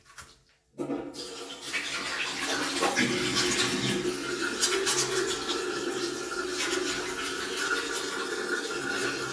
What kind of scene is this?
restroom